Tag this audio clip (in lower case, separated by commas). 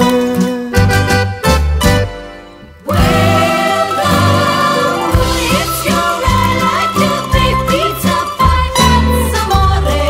music